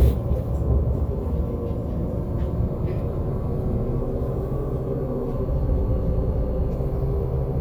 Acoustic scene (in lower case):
bus